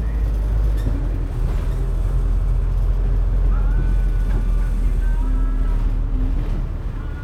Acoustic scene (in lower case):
bus